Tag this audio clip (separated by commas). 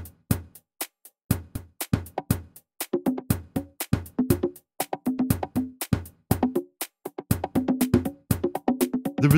Music, Speech